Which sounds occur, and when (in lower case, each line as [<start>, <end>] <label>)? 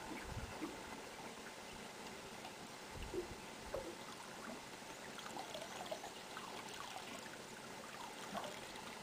[0.00, 9.02] water